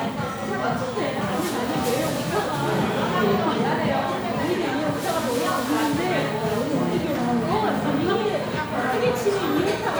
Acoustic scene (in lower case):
crowded indoor space